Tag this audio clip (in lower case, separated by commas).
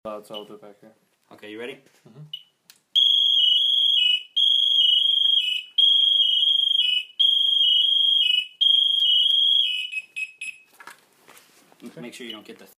alarm